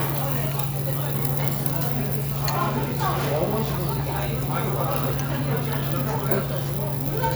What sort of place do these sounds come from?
restaurant